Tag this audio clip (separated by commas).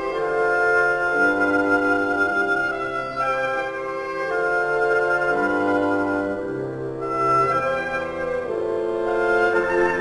Music, Musical instrument